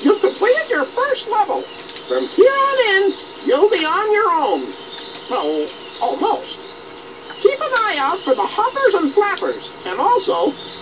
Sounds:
animal, speech

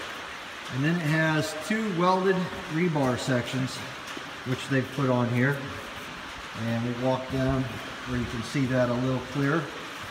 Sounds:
speech

